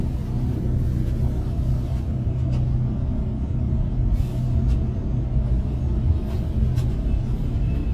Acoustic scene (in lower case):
bus